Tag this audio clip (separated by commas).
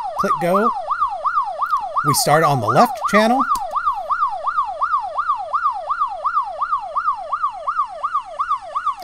Ambulance (siren)